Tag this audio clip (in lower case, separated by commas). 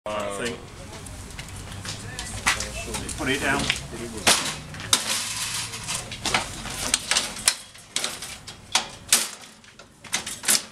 speech